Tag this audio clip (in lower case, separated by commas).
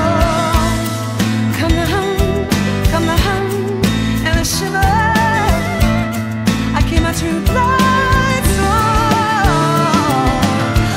music, musical instrument, guitar, plucked string instrument, independent music